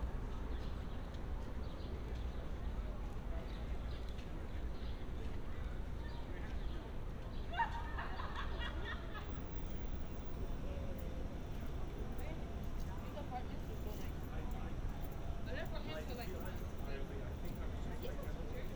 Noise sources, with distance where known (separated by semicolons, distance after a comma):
person or small group talking